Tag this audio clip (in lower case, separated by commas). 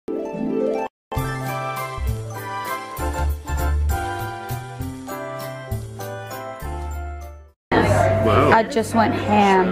tinkle